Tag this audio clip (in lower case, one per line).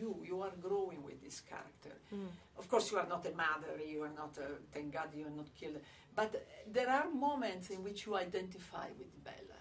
speech